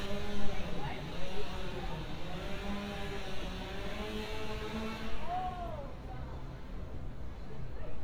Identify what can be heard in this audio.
large rotating saw, person or small group talking